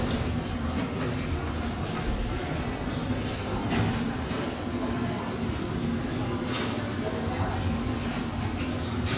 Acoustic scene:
subway station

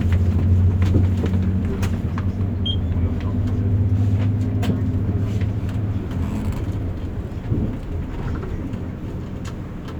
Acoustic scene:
bus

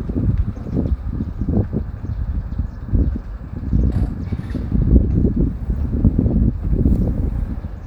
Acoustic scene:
residential area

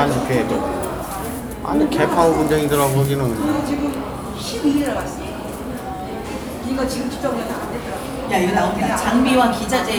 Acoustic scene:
cafe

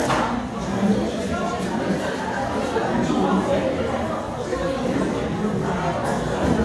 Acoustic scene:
crowded indoor space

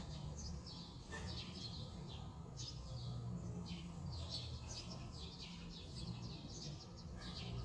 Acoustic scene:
residential area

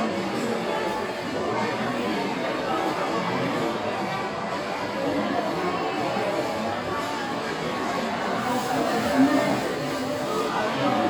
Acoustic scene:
restaurant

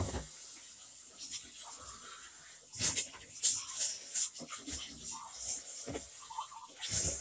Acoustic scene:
kitchen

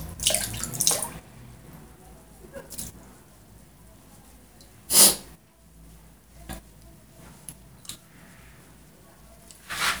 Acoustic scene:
restroom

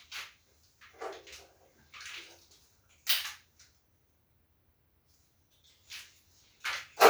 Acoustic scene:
restroom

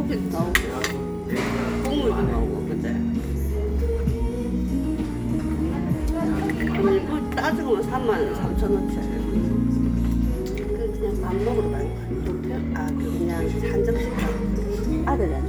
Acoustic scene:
crowded indoor space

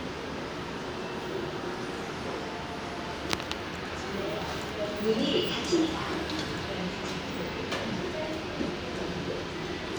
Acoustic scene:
elevator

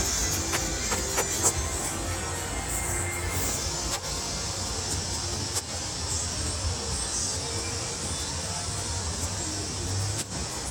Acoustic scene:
street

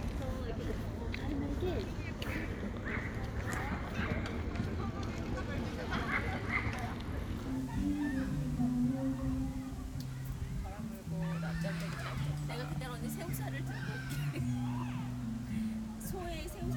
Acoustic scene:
park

